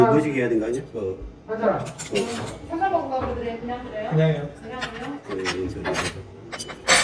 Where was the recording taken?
in a restaurant